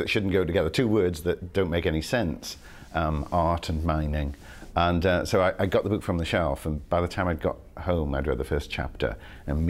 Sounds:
Speech

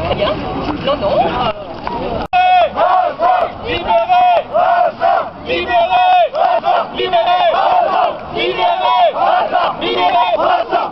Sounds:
Speech

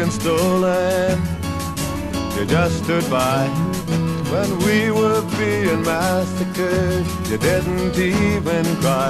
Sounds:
Music

